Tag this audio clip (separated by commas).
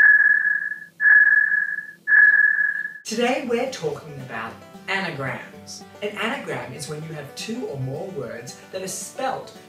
Music, Speech